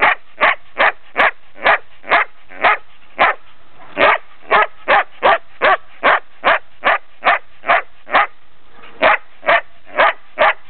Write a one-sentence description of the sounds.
Dog barking loudly